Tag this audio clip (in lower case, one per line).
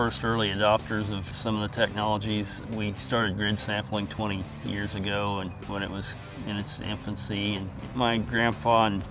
speech
music